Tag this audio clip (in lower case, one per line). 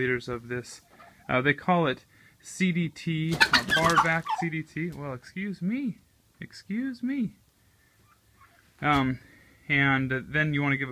livestock
animal
speech